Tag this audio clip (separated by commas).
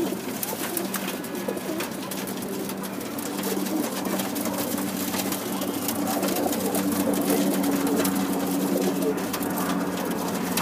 Pigeon, inside a small room, Bird